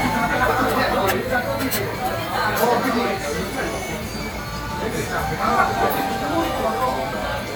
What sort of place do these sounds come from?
crowded indoor space